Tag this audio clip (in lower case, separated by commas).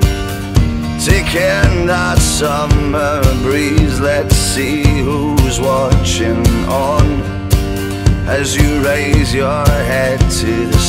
punk rock, progressive rock, music, rock and roll